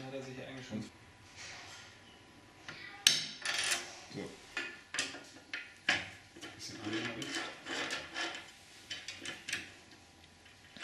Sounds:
speech

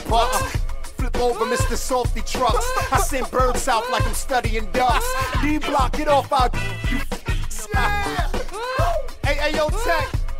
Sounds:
hip hop music, music, rapping

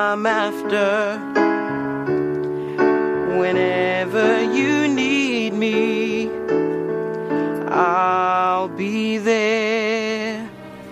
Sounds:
music, electric piano

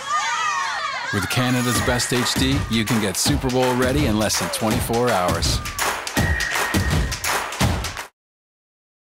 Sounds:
music, speech

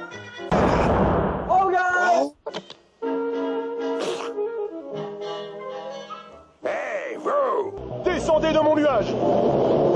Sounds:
music, burst, speech

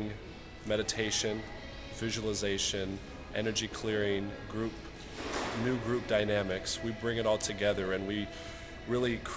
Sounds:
speech, music

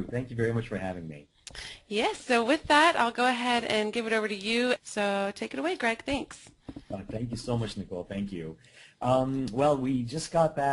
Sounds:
speech

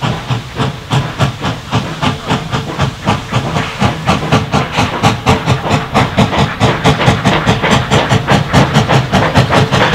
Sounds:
speech

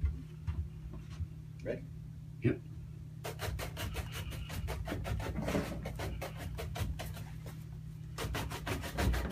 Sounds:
speech

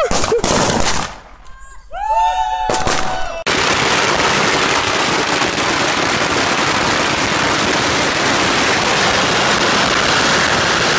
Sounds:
lighting firecrackers

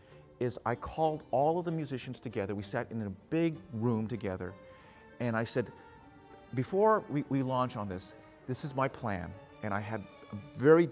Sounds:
classical music, music, orchestra, speech

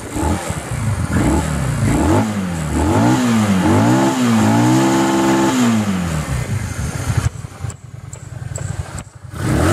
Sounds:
driving motorcycle, motorcycle, accelerating, vehicle

